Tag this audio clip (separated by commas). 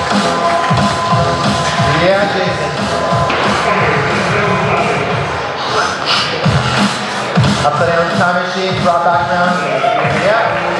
Music, inside a public space, Speech